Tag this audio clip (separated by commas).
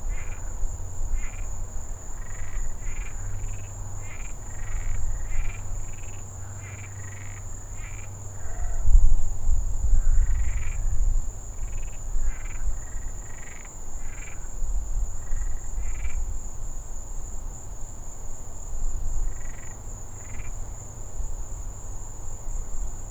Frog, Animal, Wild animals